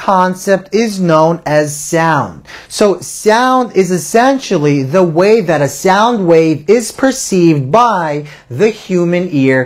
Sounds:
speech

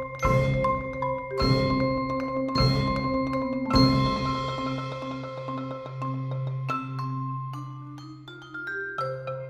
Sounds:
percussion

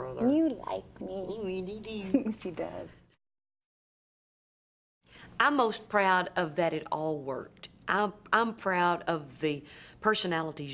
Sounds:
speech
conversation
female speech

